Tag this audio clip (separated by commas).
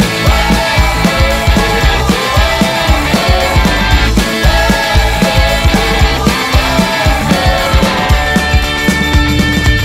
Theme music, Music, Dance music, Pop music